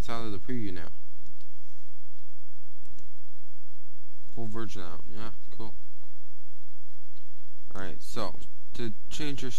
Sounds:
Speech

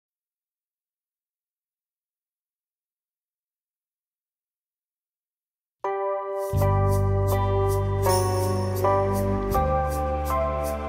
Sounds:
Music, Tender music

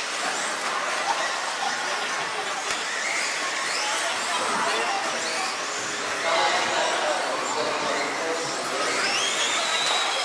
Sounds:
Speech

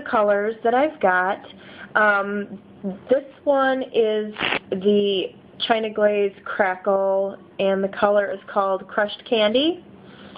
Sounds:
Speech

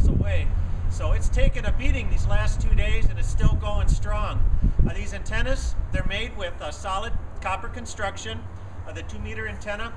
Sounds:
Speech

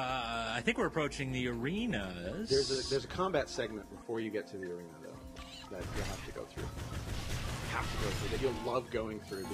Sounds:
Speech

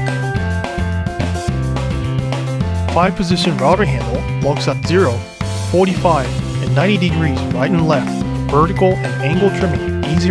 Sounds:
Speech, Music

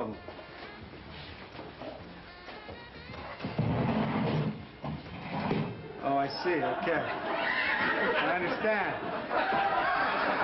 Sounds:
Speech, Music

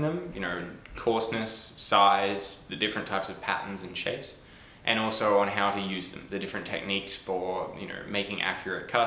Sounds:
Speech

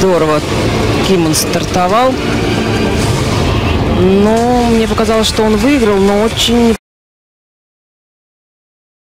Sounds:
Music, Speech

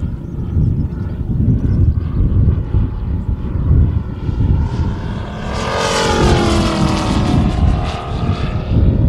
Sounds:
airplane flyby

